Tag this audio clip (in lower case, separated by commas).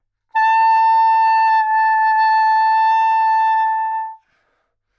musical instrument, music, wind instrument